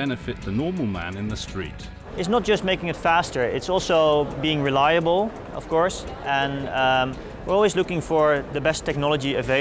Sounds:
electronica, music, speech

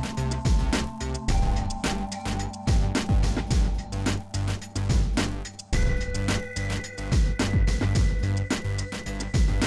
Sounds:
music

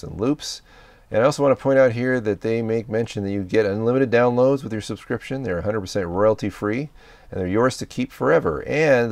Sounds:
speech

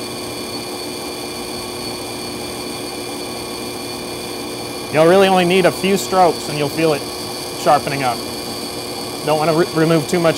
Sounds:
speech, tools

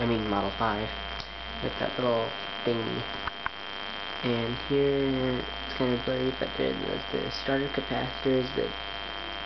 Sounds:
speech

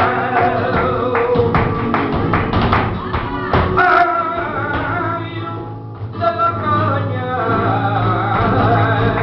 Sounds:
flamenco, music, speech, music of latin america, singing

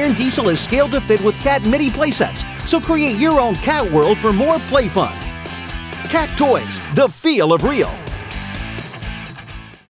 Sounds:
music, speech

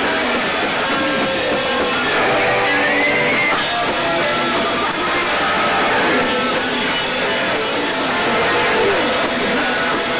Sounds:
music

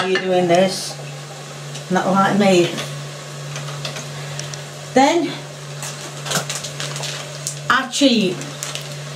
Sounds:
speech

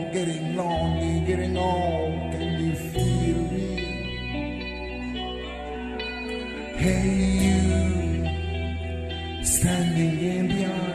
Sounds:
music, singing

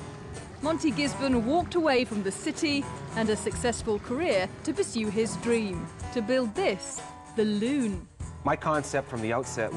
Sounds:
music, speech

